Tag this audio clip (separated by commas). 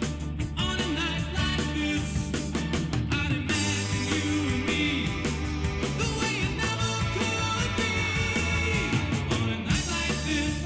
Music